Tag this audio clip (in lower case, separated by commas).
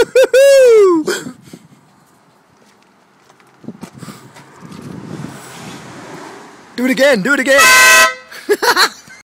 vehicle horn, speech, outside, urban or man-made